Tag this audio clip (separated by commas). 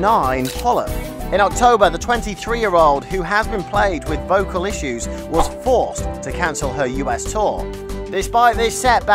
Speech, Music